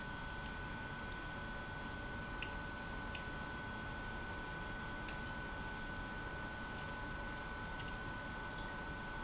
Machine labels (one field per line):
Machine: pump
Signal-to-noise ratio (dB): 6 dB